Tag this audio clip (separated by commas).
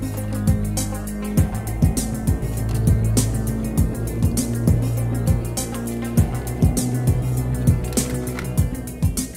Music